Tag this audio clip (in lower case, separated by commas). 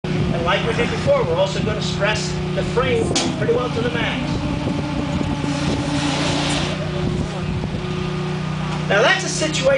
outside, rural or natural, speech, vehicle